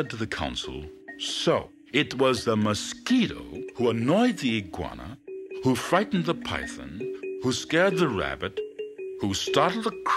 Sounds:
mosquito buzzing

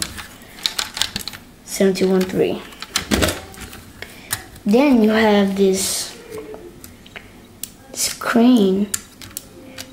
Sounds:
Speech

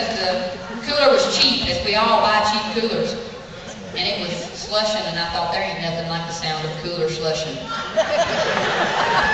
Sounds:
Speech

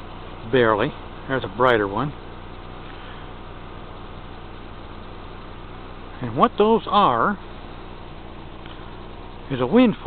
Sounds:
Speech

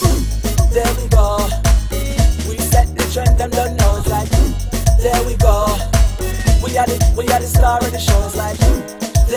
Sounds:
Afrobeat, Music

